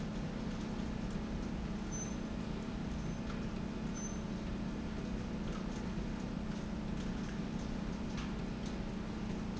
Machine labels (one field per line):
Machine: slide rail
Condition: normal